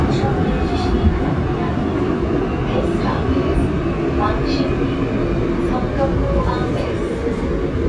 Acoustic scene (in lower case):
subway train